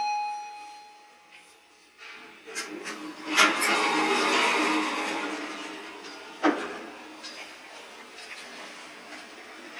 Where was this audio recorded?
in an elevator